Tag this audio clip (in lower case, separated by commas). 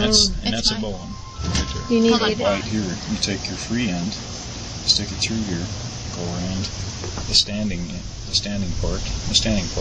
speech